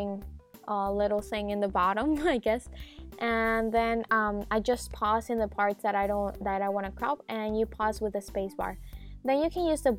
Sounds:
music, speech

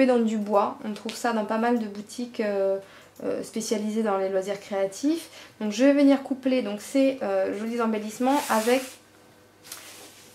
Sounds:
speech

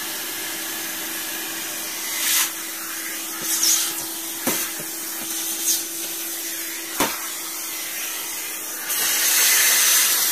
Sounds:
vacuum cleaner

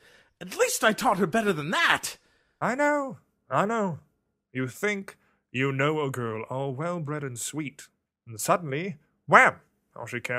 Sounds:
speech

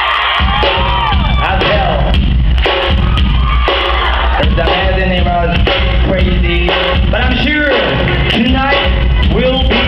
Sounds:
music, rhythm and blues, speech

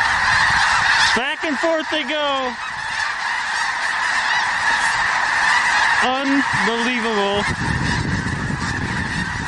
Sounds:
fowl, honk, goose honking, goose

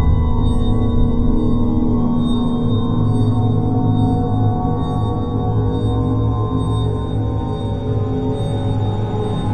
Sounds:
music, soundtrack music

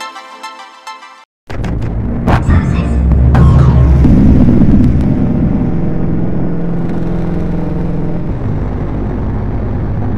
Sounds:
music

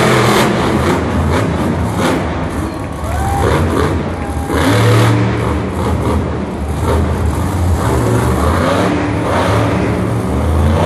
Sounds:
vehicle

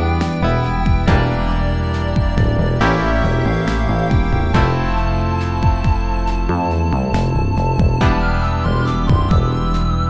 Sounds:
video game music, music

